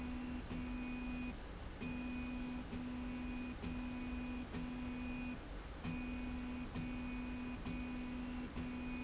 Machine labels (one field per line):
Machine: slide rail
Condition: normal